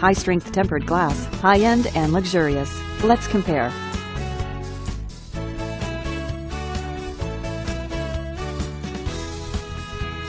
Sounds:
Music, Speech

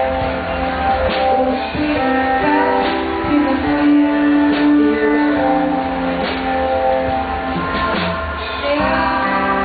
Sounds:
Music

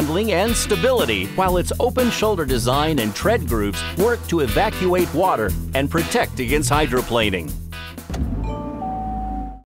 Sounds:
Music, Speech

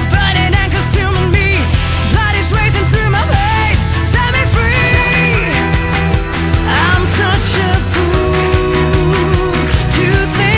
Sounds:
Music

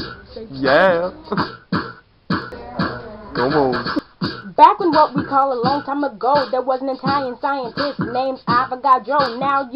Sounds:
Speech, Music

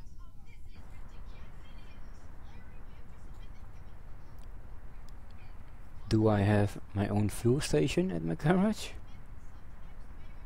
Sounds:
Speech

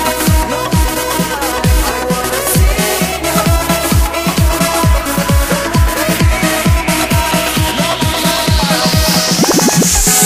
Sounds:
Music

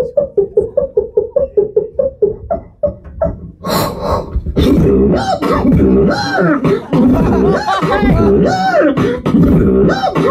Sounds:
Vocal music, Beatboxing

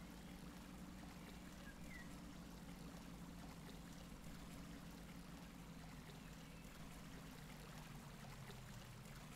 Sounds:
Silence

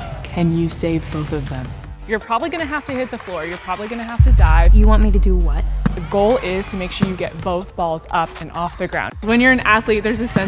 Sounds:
playing volleyball

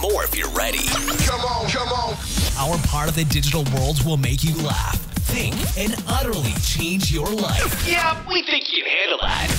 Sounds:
Music, Speech

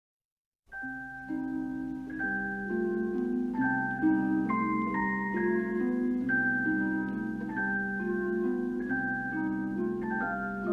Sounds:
Music

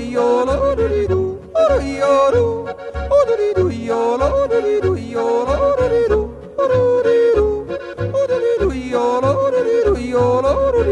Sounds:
yodelling

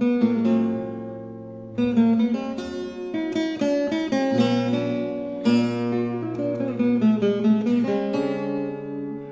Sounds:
Guitar, Plucked string instrument, Musical instrument, Music

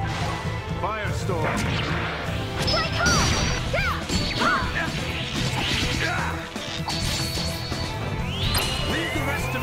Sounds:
crash, Speech, Music

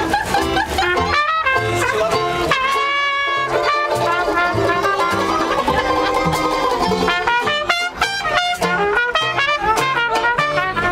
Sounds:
Jazz, Music, Speech

